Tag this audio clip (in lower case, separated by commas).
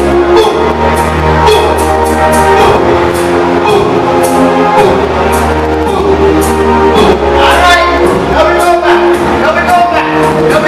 speech, music